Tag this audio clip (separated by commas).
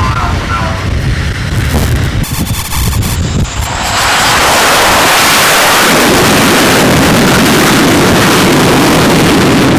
Aircraft, Speech, Vehicle, Fixed-wing aircraft